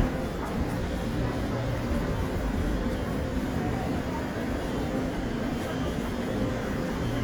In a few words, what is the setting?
subway station